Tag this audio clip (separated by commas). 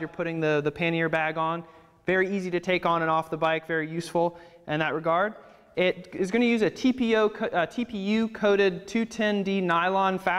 Speech